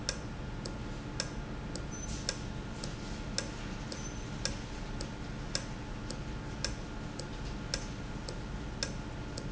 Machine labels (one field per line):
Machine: valve